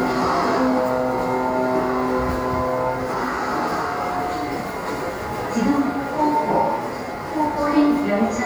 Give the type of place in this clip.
subway station